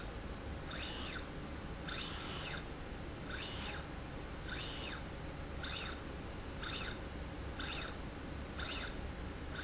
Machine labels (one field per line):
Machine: slide rail